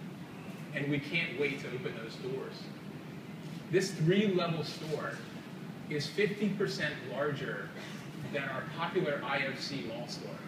A man gives a speech